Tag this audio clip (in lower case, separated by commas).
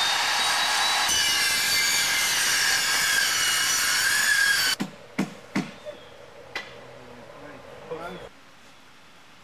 outside, rural or natural, wood, speech